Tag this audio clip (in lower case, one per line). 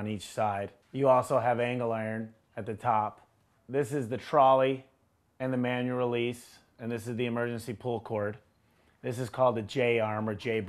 speech